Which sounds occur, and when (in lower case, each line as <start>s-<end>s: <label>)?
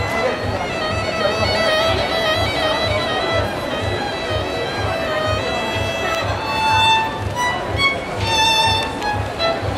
0.0s-9.7s: speech noise
0.0s-9.7s: music
0.0s-9.7s: wind
6.1s-6.2s: tick
7.3s-7.4s: tick
8.8s-8.9s: tick
9.0s-9.1s: tick